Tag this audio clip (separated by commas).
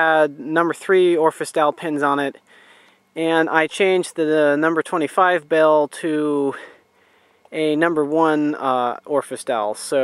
Speech